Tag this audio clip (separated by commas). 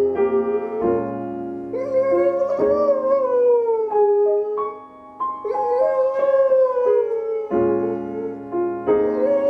Howl, Yip, Music, Dog, Domestic animals, Animal